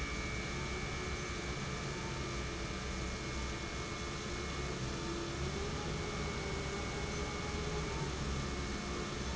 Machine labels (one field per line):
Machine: pump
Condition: normal